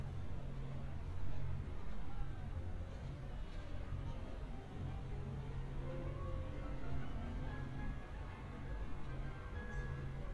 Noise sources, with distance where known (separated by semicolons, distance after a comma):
music from an unclear source